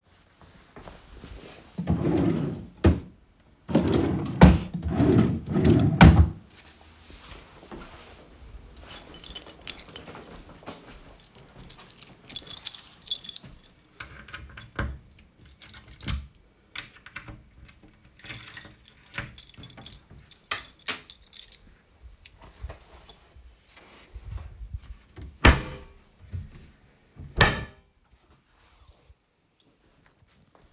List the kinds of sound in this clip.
wardrobe or drawer, keys